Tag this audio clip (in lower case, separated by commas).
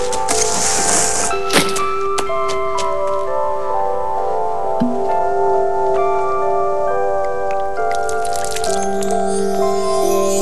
music